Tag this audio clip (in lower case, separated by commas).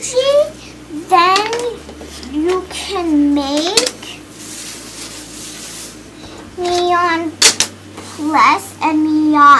speech